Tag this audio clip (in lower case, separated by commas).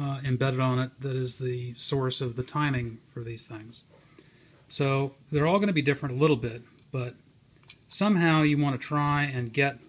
speech